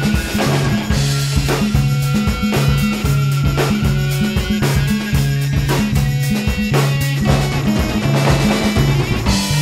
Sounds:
Music

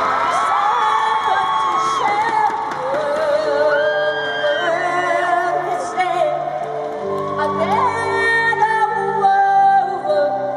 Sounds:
Music

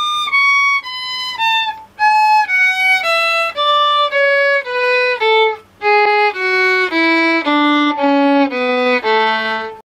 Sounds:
Music, Musical instrument, Violin

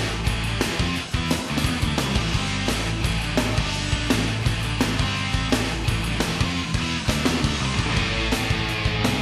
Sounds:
Music

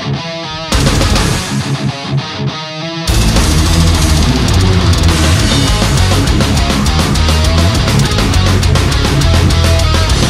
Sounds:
Sampler, Music

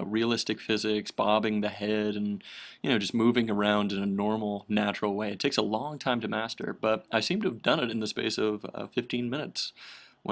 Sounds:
Speech

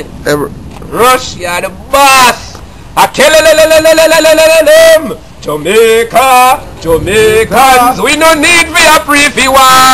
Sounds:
Speech

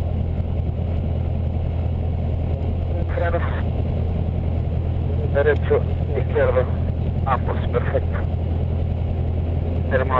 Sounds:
Speech

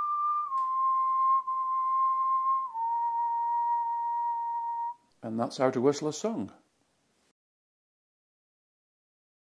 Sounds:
people whistling

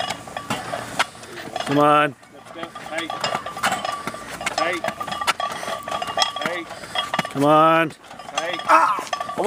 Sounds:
Speech, Walk

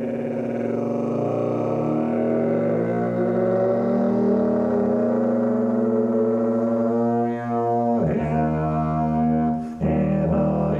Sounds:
Brass instrument

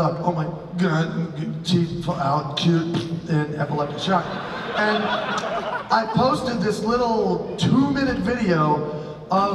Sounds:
Speech

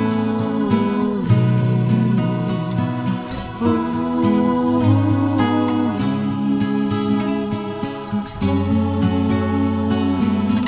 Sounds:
Music, Gospel music, Christmas music

